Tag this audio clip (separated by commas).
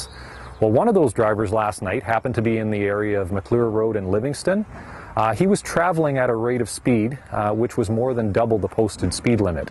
Speech